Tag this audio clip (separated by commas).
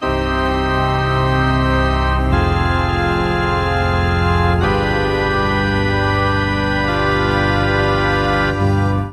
Music, Organ, Musical instrument, Keyboard (musical)